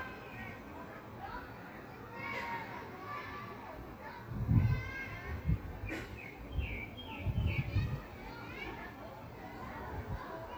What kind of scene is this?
park